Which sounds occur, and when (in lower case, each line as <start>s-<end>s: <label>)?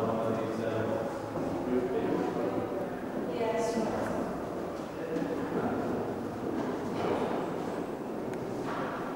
0.0s-1.1s: male speech
0.0s-9.1s: background noise
0.0s-9.1s: conversation
1.7s-2.9s: male speech
3.3s-4.2s: woman speaking
4.4s-4.8s: generic impact sounds
5.0s-5.9s: male speech
5.1s-5.3s: generic impact sounds
5.7s-5.9s: surface contact
7.0s-7.3s: male speech
7.5s-7.9s: surface contact
8.3s-8.4s: generic impact sounds
8.4s-8.8s: surface contact